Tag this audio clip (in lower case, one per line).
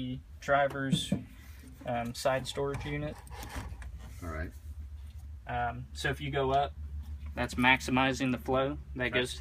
speech